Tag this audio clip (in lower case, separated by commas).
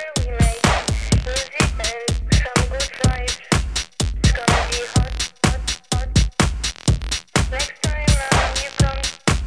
static, music